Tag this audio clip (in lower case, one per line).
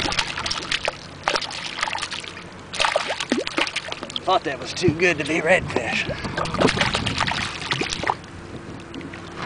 wind